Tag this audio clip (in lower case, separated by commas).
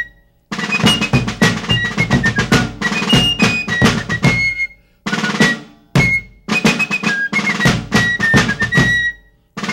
music